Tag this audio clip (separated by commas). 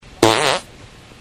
Fart